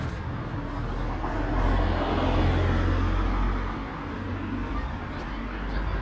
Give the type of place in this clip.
residential area